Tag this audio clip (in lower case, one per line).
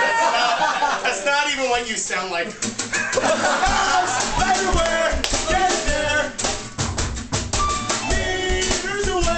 music
speech